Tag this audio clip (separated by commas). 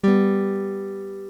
Guitar, Strum, Musical instrument, Music, Acoustic guitar, Plucked string instrument